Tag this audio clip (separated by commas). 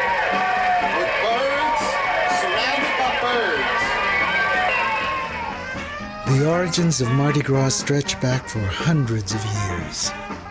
Speech, Music